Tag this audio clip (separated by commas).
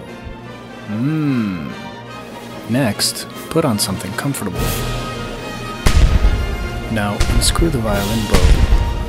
Music, Speech, fiddle, Musical instrument